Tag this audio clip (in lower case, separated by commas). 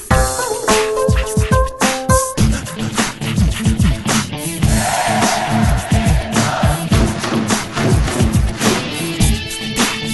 music